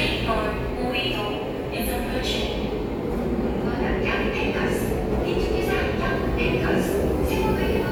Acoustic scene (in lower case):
subway station